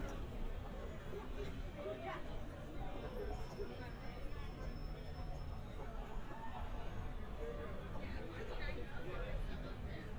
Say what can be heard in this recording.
unidentified human voice